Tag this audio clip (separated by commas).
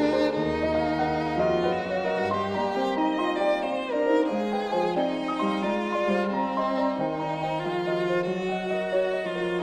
Music, Musical instrument, fiddle